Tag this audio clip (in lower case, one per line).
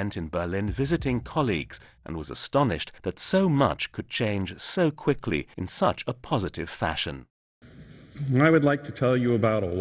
speech